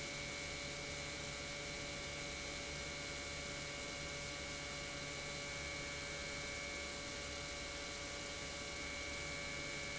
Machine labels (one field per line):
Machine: pump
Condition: normal